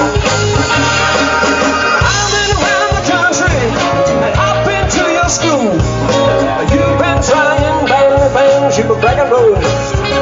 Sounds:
music, singing

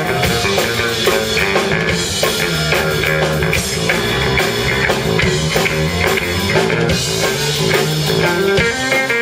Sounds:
music, guitar, musical instrument

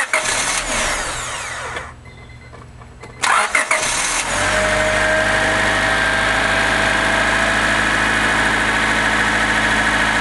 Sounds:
engine, vehicle, engine starting, car engine starting

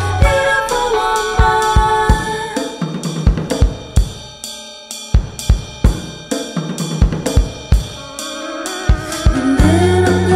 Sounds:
percussion, snare drum, drum roll, hi-hat

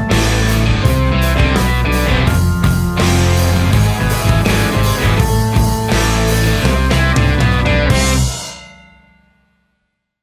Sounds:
snare drum, percussion, drum, bass drum, drum kit, rimshot

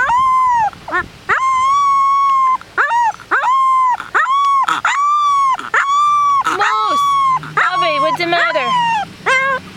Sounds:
dog whimpering

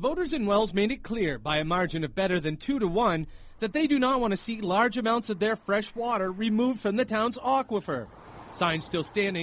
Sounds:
speech

